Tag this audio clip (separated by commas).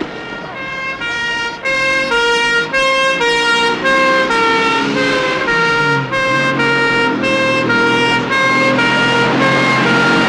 outside, urban or man-made